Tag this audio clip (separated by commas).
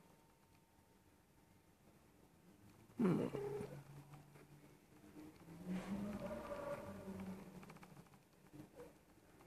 Domestic animals, Cat, Animal